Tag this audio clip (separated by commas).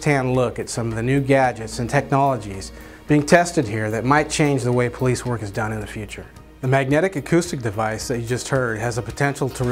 Speech, Music